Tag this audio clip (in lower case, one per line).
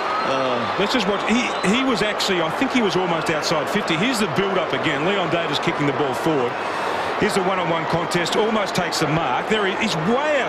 speech